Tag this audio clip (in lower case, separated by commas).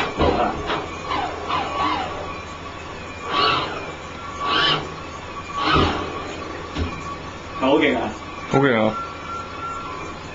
speech